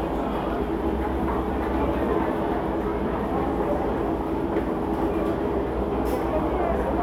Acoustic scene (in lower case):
crowded indoor space